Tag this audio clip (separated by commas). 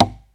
Tap